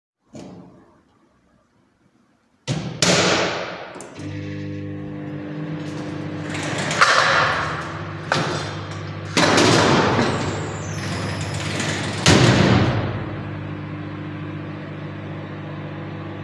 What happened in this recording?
I closed the microwave and turned it on. Then I opened a wardrobe, picked up the cookware and put it inside. After that I closed the wardrobe.